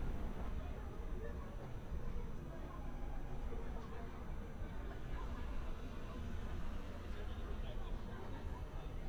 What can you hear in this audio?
person or small group talking